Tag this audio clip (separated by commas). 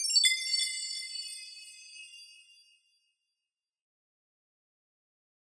Chime, Bell